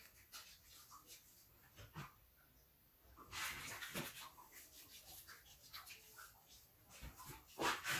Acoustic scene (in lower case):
restroom